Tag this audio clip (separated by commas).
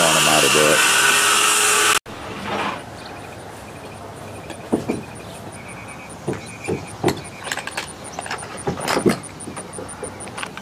Speech